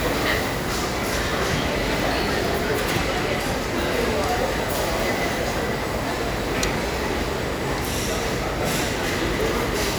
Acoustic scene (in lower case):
crowded indoor space